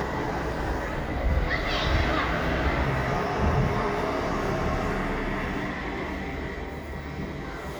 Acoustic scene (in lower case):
residential area